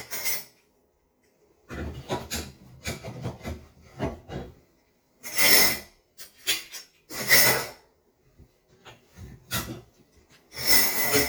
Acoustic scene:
kitchen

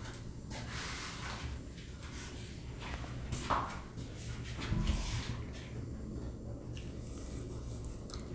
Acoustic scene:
elevator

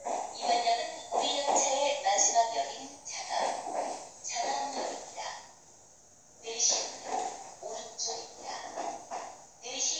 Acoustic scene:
subway train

